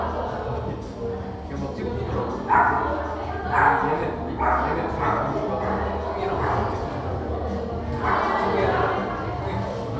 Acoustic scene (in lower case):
crowded indoor space